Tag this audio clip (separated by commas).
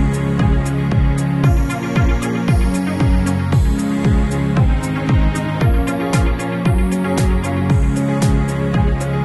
Sound effect, Music